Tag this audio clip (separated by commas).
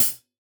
Music, Percussion, Cymbal, Musical instrument, Hi-hat